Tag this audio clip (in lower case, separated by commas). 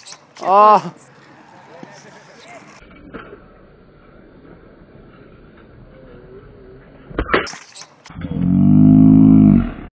speech